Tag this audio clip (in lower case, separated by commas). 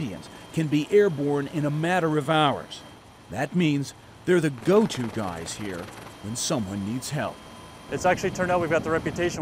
vehicle, speech, helicopter, aircraft